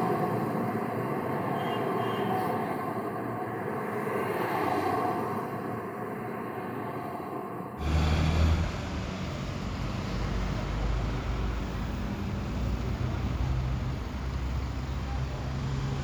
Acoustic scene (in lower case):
street